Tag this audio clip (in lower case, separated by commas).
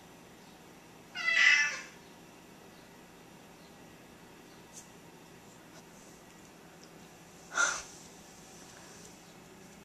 cat, cat meowing, animal, meow, domestic animals